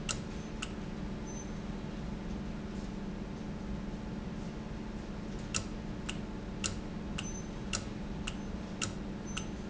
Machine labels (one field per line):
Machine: valve